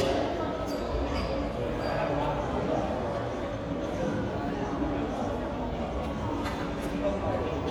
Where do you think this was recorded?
in a crowded indoor space